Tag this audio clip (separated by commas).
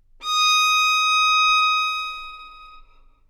Musical instrument, Music, Bowed string instrument